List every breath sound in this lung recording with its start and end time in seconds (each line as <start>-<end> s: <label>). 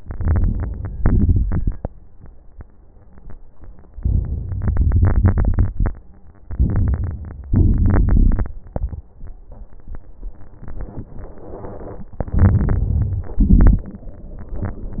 0.00-0.95 s: inhalation
0.00-0.95 s: crackles
0.95-1.90 s: exhalation
0.95-1.90 s: crackles
3.97-4.60 s: inhalation
3.97-4.60 s: crackles
4.67-5.93 s: exhalation
4.67-5.93 s: crackles
6.38-7.52 s: inhalation
6.38-7.52 s: crackles
7.56-8.61 s: exhalation
7.56-8.61 s: crackles
12.20-13.38 s: inhalation
12.20-13.38 s: crackles
13.40-14.02 s: exhalation
13.40-14.02 s: crackles